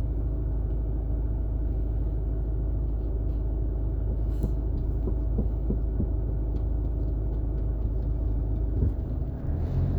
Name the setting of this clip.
car